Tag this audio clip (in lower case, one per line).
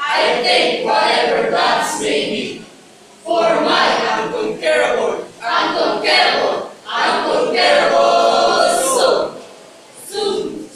speech
male speech
woman speaking